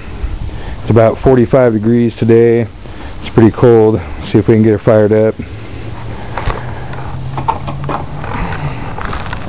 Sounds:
Speech

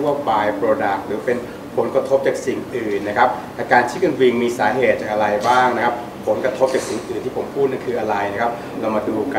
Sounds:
Speech

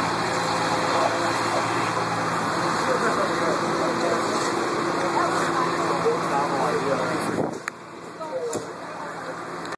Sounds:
Vehicle, Speech

